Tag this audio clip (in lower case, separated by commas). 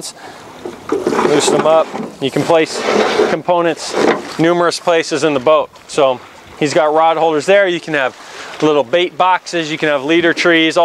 speech, dribble